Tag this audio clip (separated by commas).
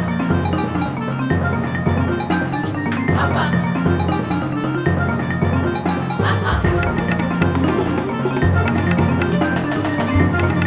Music, Soundtrack music